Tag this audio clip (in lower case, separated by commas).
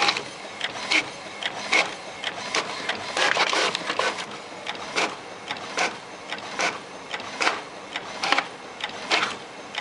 printer, printer printing